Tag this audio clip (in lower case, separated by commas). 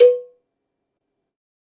bell, cowbell